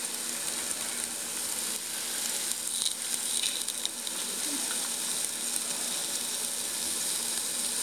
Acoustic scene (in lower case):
restaurant